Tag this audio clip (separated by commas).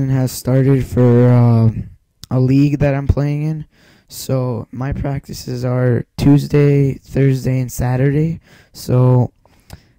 Speech